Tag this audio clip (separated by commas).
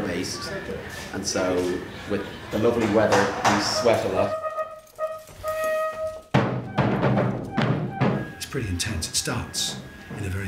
Timpani